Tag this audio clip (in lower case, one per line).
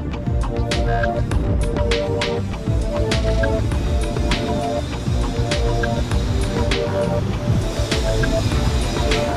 music